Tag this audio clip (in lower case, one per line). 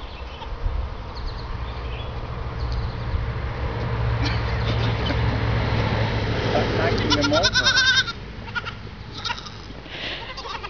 sheep bleating